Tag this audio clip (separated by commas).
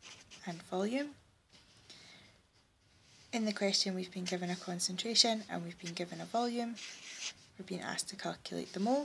inside a small room, Speech, Writing